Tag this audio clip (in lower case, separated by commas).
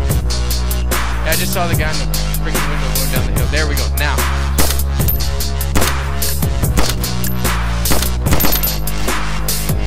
speech, music